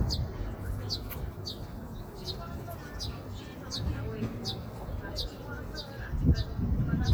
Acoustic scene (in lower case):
park